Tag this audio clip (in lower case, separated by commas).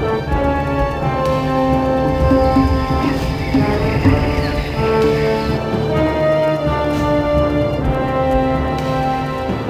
music